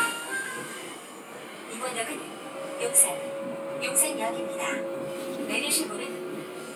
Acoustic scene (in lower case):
subway train